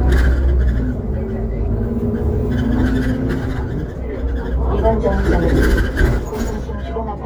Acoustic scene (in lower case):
bus